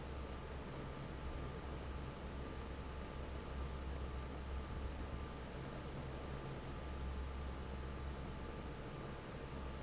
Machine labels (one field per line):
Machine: fan